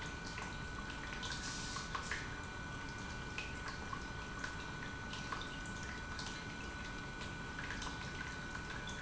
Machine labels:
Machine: pump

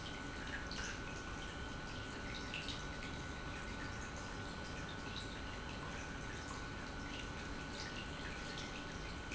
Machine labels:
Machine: pump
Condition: normal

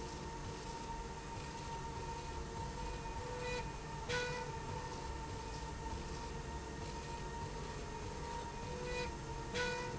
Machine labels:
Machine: slide rail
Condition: normal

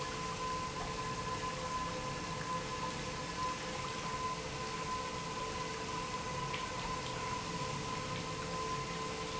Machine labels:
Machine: pump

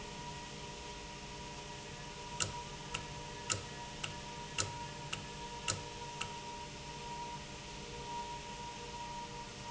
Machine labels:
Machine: valve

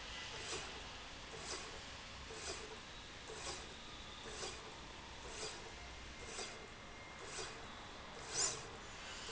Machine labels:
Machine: slide rail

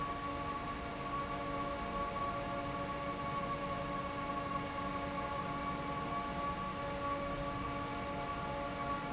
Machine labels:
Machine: fan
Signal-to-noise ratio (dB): -6 dB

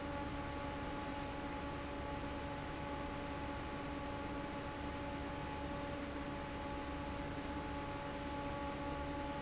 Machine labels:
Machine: fan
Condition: normal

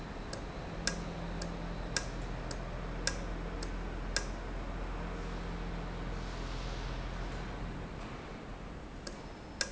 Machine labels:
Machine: valve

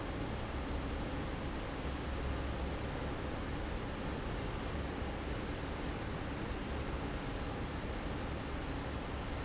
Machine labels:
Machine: fan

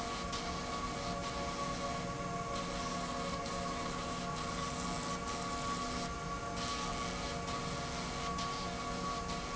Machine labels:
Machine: slide rail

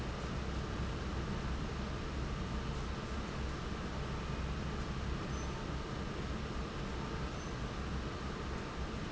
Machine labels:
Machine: fan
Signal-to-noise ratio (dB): -6 dB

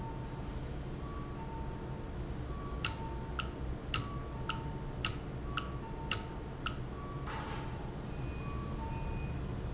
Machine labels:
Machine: valve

